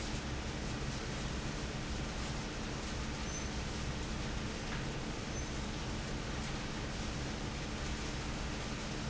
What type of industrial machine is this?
fan